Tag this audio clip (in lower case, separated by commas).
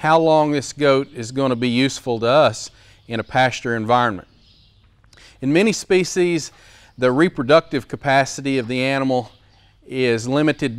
speech